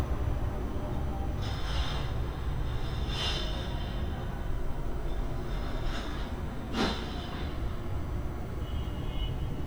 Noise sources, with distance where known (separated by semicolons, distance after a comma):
car horn